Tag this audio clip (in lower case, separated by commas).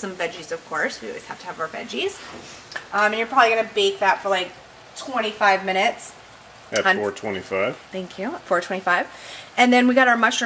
speech